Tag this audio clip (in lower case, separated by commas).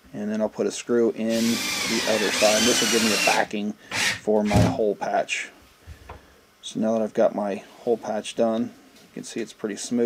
inside a small room, speech